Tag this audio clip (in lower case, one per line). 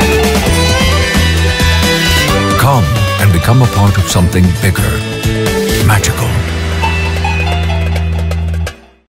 speech
music